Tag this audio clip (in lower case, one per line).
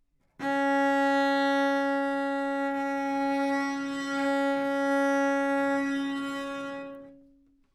musical instrument
bowed string instrument
music